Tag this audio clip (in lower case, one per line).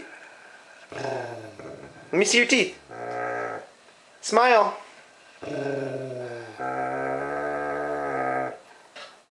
speech